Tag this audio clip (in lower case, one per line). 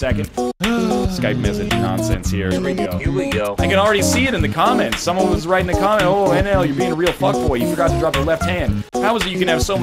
music
speech